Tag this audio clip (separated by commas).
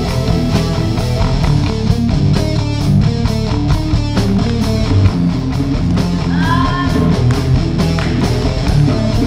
Music